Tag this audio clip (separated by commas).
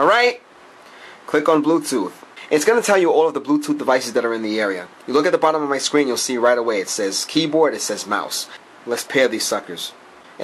Speech